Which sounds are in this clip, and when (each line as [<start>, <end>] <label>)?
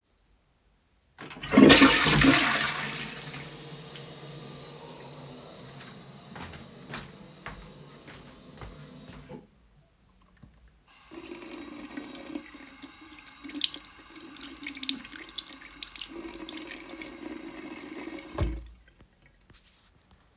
[1.09, 3.81] toilet flushing
[6.18, 9.66] footsteps
[10.88, 18.67] running water